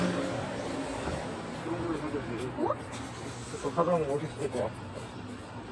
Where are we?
in a residential area